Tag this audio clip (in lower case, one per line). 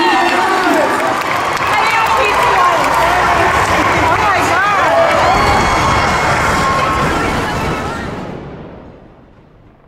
people cheering